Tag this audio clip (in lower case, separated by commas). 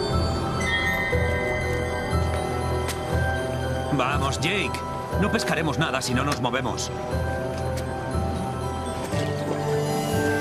stream, music, speech